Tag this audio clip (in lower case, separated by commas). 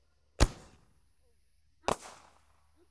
fireworks, explosion